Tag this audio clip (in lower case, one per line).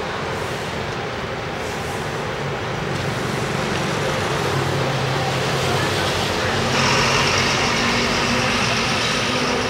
traffic noise
outside, urban or man-made
vehicle